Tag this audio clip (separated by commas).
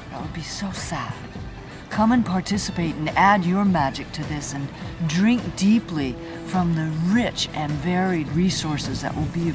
Speech, Music